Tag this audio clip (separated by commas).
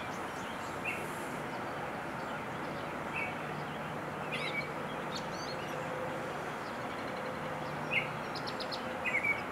baltimore oriole calling